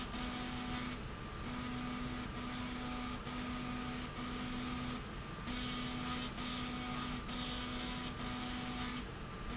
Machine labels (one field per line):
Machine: slide rail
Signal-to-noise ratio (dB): 0 dB